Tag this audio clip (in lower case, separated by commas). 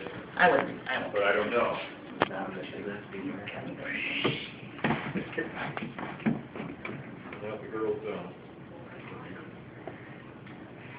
speech, inside a small room